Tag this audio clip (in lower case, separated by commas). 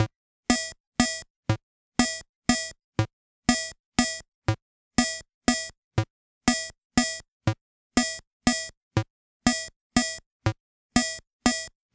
music, keyboard (musical), musical instrument